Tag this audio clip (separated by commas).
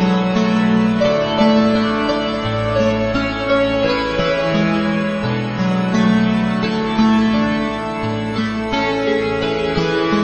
Musical instrument, fiddle, Music